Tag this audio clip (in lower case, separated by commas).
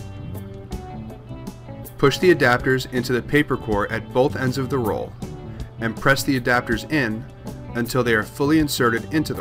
speech, music